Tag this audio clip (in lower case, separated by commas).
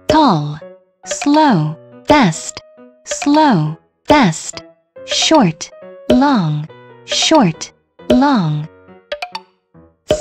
speech, music